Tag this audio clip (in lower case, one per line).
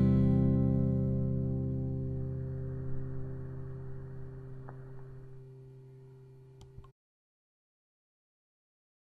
music